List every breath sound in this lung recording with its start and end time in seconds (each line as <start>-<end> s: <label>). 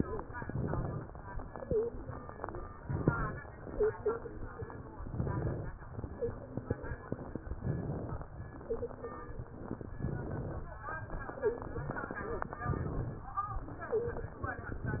0.28-1.08 s: inhalation
1.56-1.96 s: wheeze
2.79-3.42 s: inhalation
3.68-4.21 s: wheeze
5.05-5.75 s: inhalation
6.17-6.42 s: wheeze
7.55-8.26 s: inhalation
8.65-9.19 s: wheeze
10.00-10.70 s: inhalation
11.38-11.78 s: wheeze
12.62-13.32 s: inhalation
13.91-14.31 s: wheeze